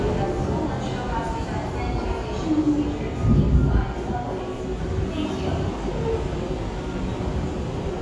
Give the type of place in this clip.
subway station